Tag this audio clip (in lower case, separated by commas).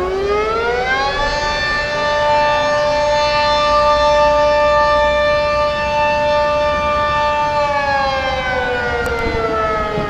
siren